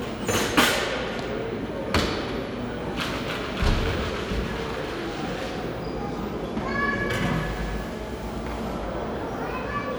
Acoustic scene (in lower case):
cafe